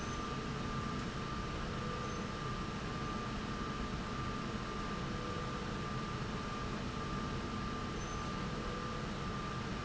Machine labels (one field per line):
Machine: slide rail